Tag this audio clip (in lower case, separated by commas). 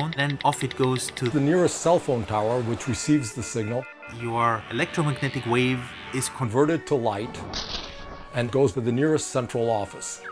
music, speech